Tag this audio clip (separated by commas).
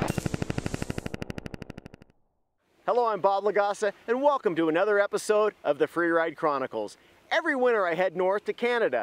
outside, rural or natural, Speech